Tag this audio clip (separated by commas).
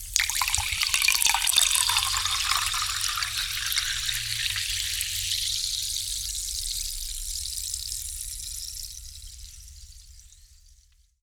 Liquid